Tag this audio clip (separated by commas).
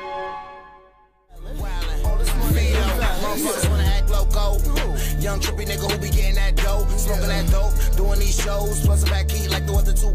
Music